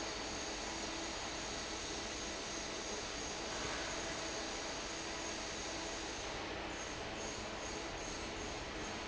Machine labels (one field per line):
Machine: fan